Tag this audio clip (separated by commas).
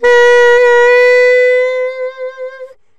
Musical instrument, Music, Wind instrument